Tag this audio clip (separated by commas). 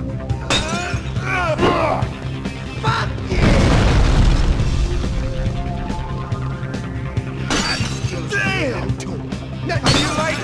Speech, Music